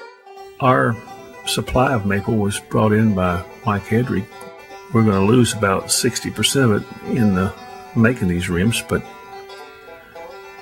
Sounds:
Speech, Music

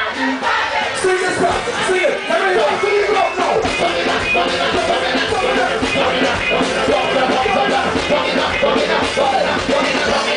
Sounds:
Music

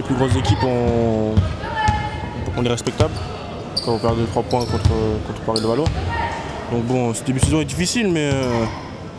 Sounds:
Speech, Basketball bounce

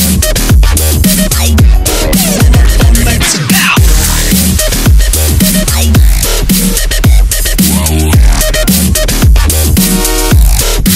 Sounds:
Music, Dubstep

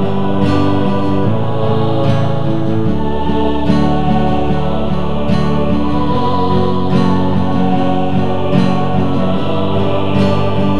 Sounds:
Music

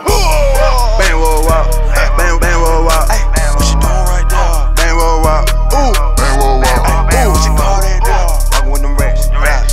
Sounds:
Music

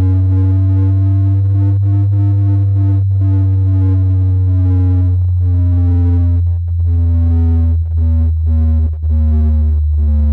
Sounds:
Electronic music

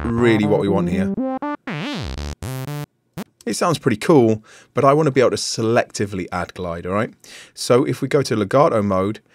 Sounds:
Synthesizer

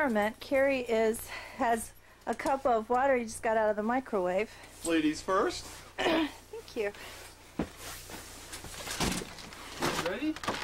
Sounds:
Speech

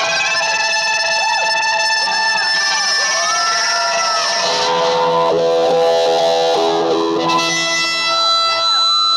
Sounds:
Music, Musical instrument

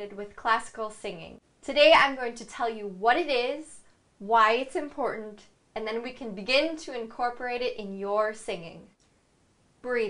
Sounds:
Speech

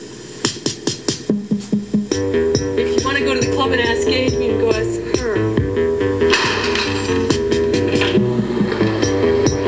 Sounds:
Music, Speech

